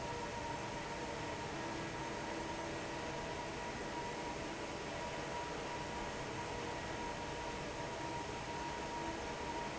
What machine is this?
fan